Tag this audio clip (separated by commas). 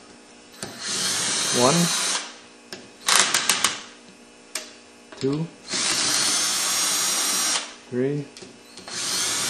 Speech, Engine